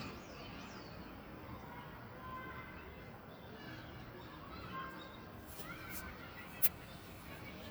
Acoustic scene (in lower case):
park